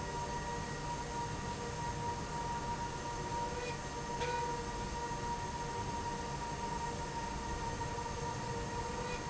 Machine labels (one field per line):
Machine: slide rail